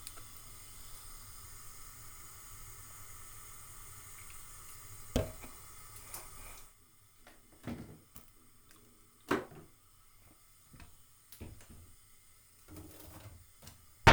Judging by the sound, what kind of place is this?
kitchen